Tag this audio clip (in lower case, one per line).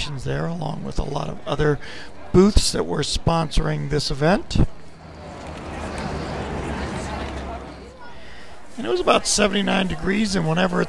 speech